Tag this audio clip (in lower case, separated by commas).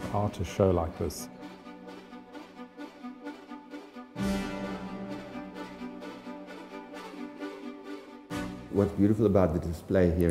speech, music